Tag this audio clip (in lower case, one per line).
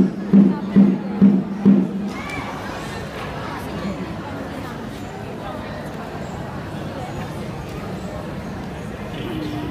speech
music